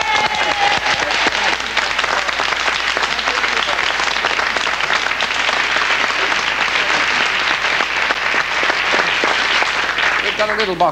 Someone shouting day while there is thunderous applause